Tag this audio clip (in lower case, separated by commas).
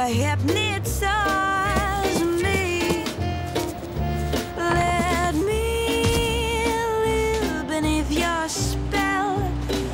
music, background music